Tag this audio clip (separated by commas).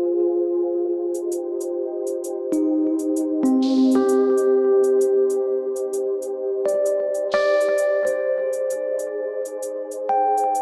Electronic music, Music, Techno